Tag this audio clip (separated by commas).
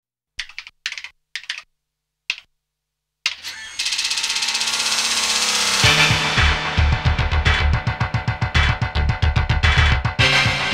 Music